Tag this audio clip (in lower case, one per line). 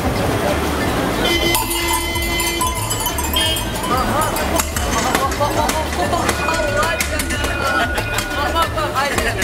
ice cream truck